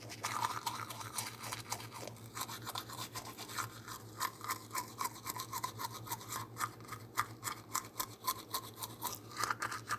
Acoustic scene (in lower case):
restroom